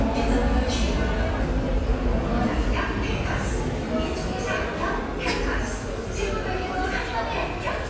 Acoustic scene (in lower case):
subway station